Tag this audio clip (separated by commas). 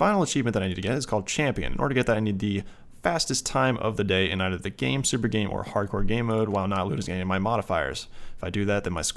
Speech